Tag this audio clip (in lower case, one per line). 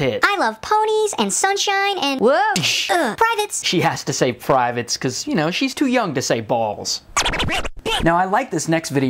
speech
inside a small room